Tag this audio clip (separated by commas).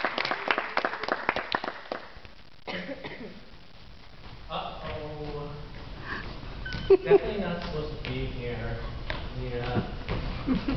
Speech